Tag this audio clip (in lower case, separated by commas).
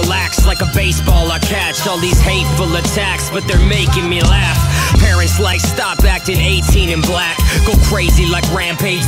music, funk